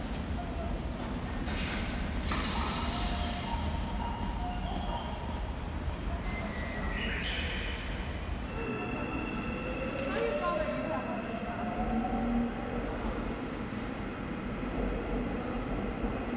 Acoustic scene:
subway station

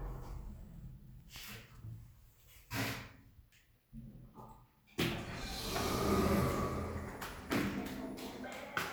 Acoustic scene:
elevator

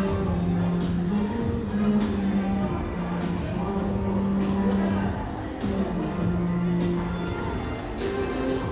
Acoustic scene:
crowded indoor space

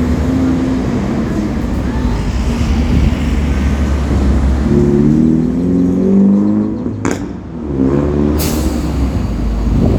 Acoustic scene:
street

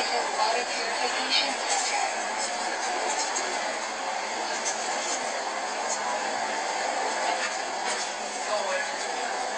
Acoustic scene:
bus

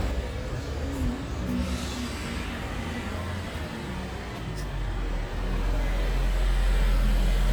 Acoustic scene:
street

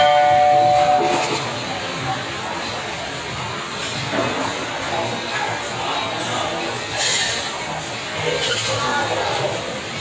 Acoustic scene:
restaurant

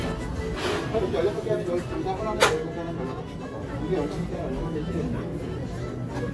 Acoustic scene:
crowded indoor space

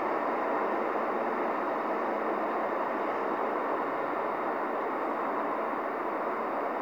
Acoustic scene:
street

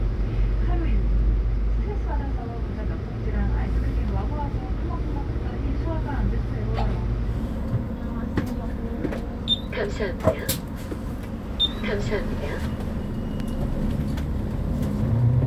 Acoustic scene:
bus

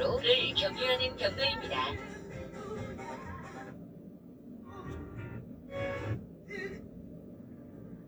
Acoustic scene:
car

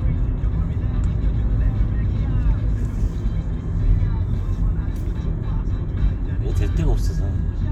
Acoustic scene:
car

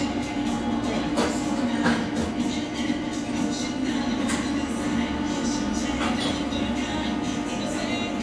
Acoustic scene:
cafe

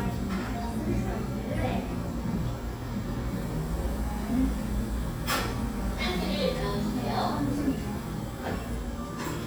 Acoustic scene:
cafe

